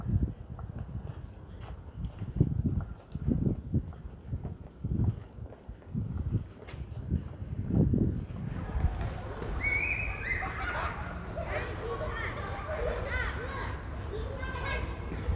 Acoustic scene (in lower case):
residential area